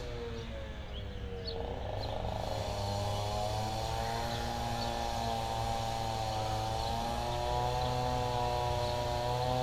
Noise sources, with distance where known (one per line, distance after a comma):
unidentified powered saw